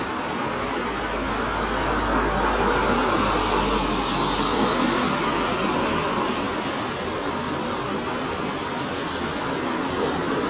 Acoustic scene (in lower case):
street